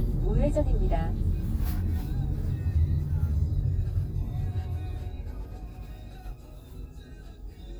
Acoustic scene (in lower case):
car